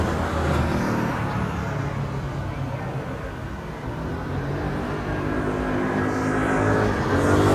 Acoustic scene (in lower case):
street